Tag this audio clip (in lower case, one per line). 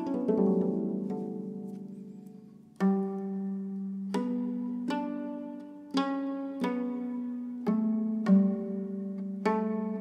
playing harp